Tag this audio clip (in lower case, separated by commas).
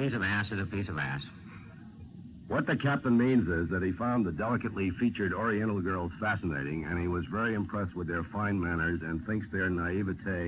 radio